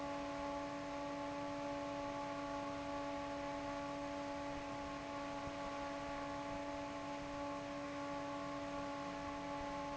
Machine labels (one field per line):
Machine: fan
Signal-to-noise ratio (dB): 6 dB